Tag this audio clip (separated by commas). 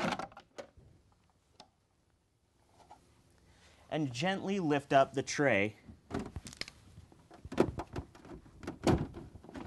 Speech